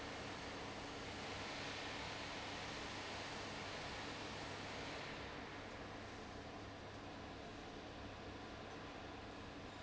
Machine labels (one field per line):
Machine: fan